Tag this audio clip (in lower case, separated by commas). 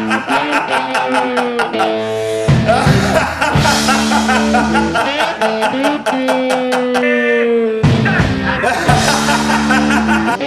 rock and roll, music